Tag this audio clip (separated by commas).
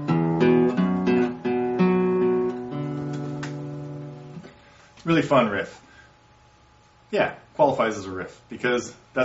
Guitar, Strum, Musical instrument, Acoustic guitar, Speech, Music, Plucked string instrument